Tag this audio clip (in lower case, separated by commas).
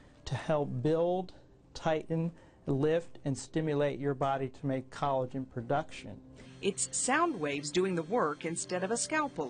speech, music